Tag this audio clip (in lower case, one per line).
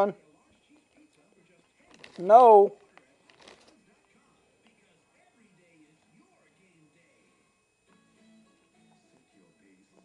speech